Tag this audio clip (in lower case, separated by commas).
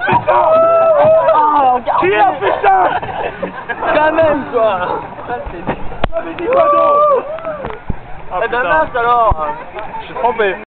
speech